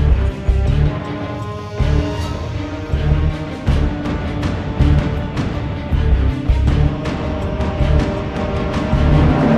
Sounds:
Music

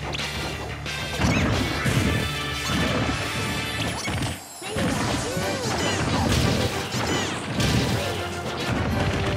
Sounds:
Music, Smash

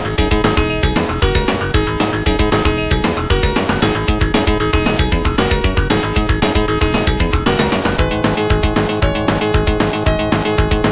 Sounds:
Music

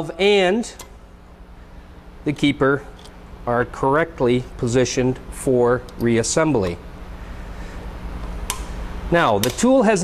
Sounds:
Speech

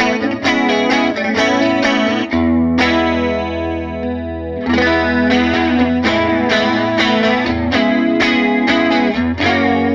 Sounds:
Music

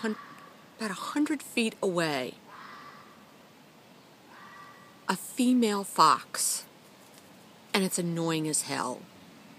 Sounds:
Speech

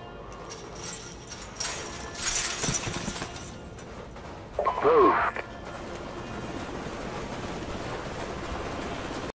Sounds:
Speech

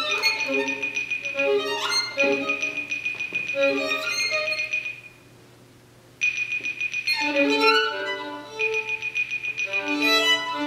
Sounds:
Music, Violin, Musical instrument

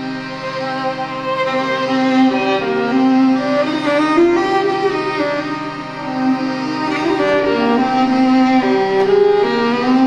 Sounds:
Music, fiddle, String section, Bowed string instrument

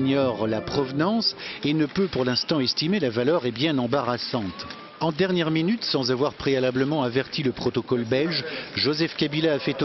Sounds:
Speech

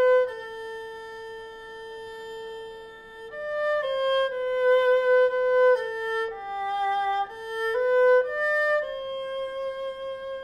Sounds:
playing erhu

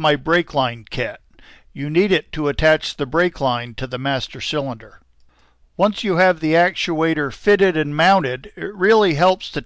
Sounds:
Speech

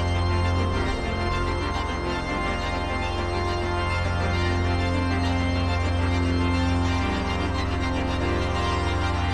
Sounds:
playing electronic organ

